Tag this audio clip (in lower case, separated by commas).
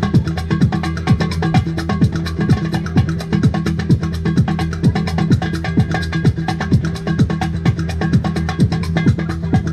trance music, electronic dance music, music, dubstep, techno, electronic music